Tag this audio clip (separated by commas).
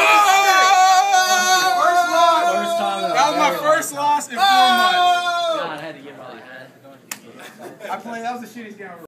Speech